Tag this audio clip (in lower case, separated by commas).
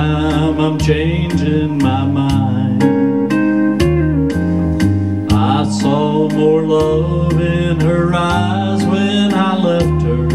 plucked string instrument, bass guitar, music, guitar, musical instrument, singing